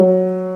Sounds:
Keyboard (musical), Piano, Music, Musical instrument

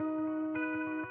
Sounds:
Music, Electric guitar, Plucked string instrument, Musical instrument, Guitar

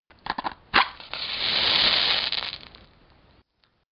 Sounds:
Fire

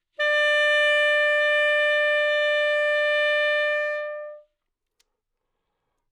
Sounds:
Musical instrument, Music, Wind instrument

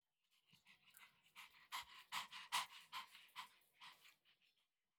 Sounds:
Animal, Domestic animals, Dog

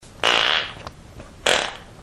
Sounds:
Fart

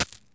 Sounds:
Coin (dropping), home sounds

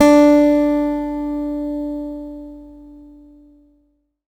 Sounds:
Guitar, Plucked string instrument, Musical instrument, Music, Acoustic guitar

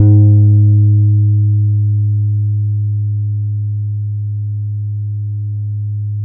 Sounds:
Musical instrument, Bass guitar, Guitar, Plucked string instrument, Music

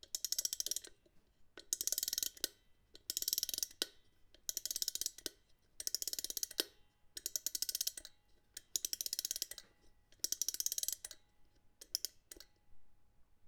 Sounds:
Mechanisms, Clock

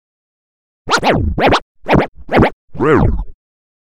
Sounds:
Music, Musical instrument, Scratching (performance technique)

